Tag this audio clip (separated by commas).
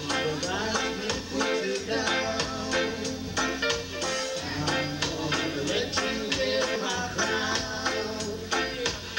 Singing, Music